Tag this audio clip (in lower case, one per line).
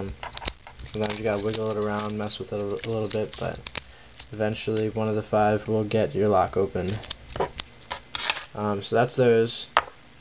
speech